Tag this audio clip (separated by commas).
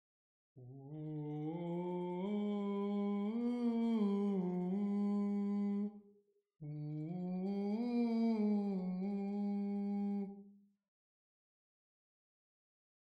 Human voice, Singing